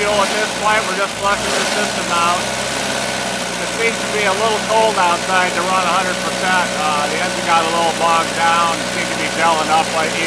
People talking with an engine in the background